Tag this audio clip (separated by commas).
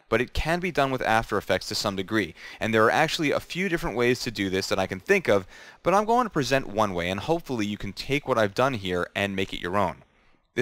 Speech